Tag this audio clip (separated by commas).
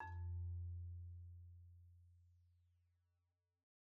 Music, xylophone, Percussion, Mallet percussion, Musical instrument